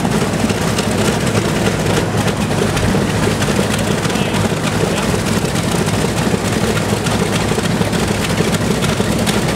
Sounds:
engine, heavy engine (low frequency), speech

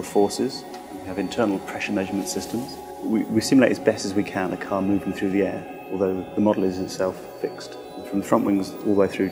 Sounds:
speech, music

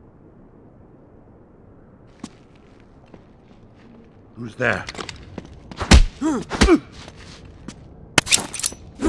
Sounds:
speech

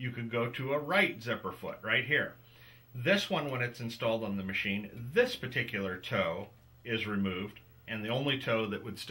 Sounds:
speech

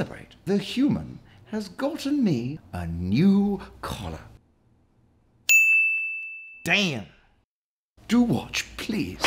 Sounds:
speech

